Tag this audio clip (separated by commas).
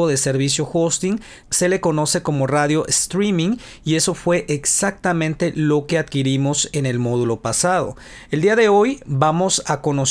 Speech